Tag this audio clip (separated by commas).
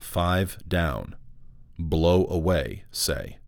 Speech, Male speech, Human voice